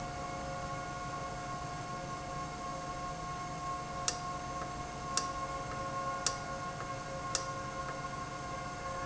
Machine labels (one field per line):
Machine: valve